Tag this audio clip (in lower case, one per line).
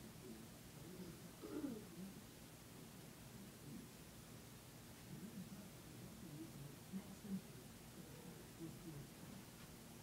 speech